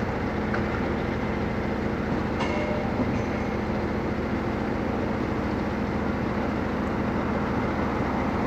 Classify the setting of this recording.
street